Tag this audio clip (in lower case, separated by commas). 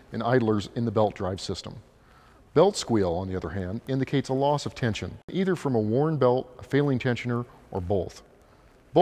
speech